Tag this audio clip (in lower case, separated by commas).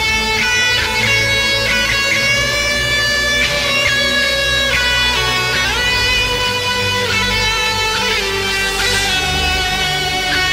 music, electronic music